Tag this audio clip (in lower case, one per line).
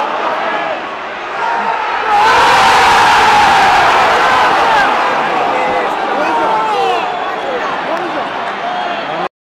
speech